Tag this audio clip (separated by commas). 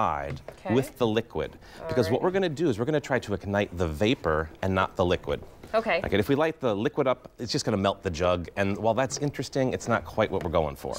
Speech